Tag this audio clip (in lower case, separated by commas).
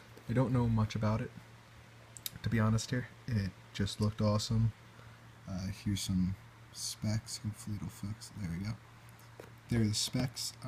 speech